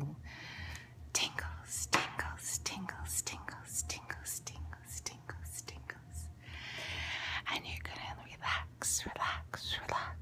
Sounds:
Speech

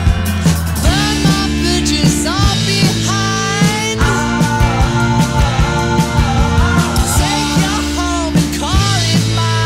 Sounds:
Music

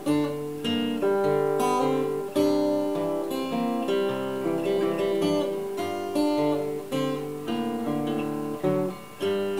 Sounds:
Acoustic guitar, Musical instrument, Plucked string instrument, Music, Guitar, Strum

